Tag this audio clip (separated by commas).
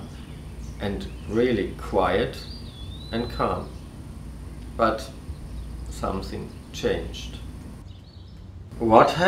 Speech